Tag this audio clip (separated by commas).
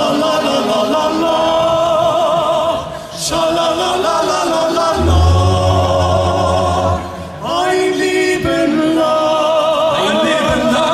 A capella, Music, Speech